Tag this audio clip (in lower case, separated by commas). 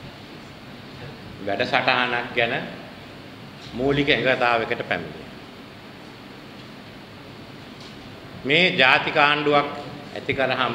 monologue, speech, male speech